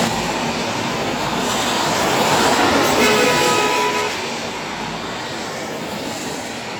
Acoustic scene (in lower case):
street